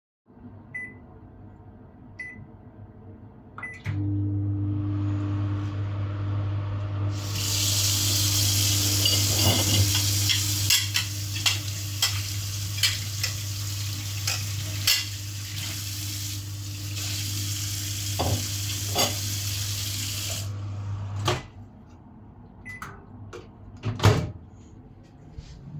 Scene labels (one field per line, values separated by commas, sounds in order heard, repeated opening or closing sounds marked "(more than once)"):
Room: kitchen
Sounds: microwave, running water, cutlery and dishes